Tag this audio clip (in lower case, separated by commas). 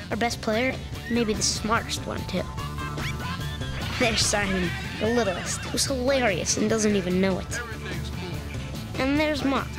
music, speech, sound effect